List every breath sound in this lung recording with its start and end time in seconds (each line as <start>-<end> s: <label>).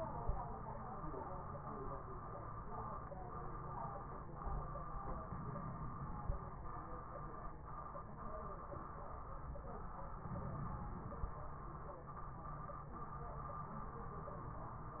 5.23-6.39 s: inhalation
10.26-11.42 s: inhalation